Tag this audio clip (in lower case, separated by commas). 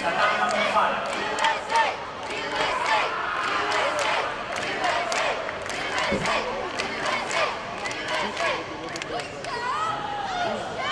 inside a public space, inside a large room or hall, speech, man speaking